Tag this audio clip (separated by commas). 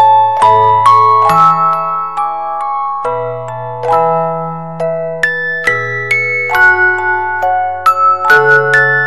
Music